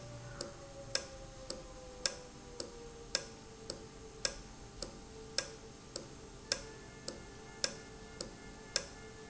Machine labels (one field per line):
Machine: valve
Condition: normal